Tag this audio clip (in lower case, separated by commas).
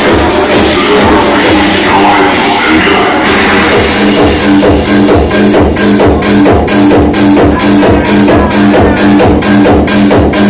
electronic music, house music, music, trance music, techno, electronic dance music